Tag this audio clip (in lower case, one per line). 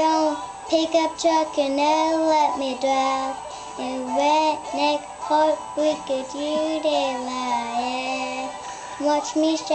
music
child singing